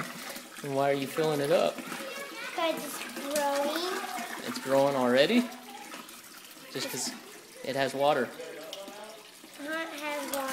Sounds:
Liquid, Children playing, Child speech, Speech

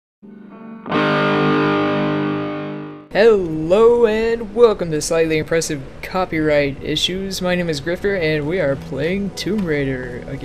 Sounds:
Distortion

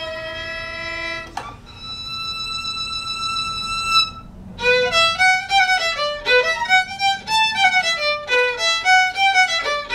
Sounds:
fiddle, Musical instrument, Music

